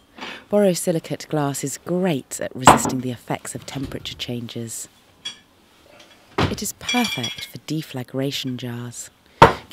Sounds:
speech
glass

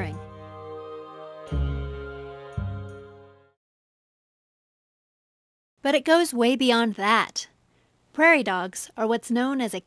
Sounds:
music
speech

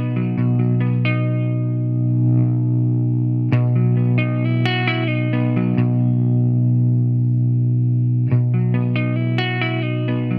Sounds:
music
plucked string instrument
strum
electric guitar
musical instrument
guitar
bass guitar

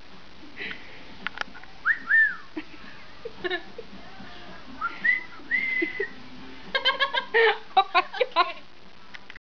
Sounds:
whistling

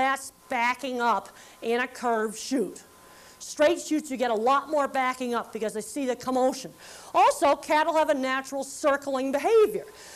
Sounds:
speech

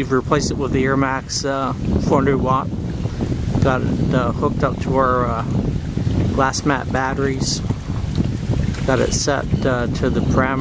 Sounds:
wind
wind noise (microphone)

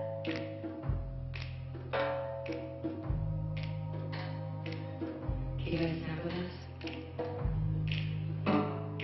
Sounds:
music
speech

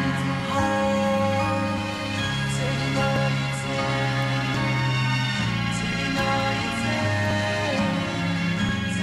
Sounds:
music
sound effect

